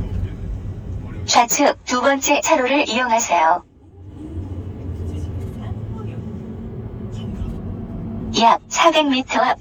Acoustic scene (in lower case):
car